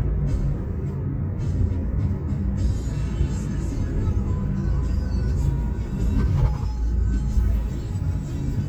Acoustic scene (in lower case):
car